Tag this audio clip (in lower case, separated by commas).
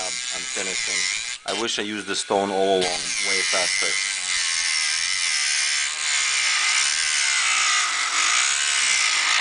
inside a small room, speech